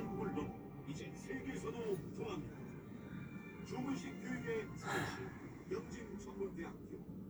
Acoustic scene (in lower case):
car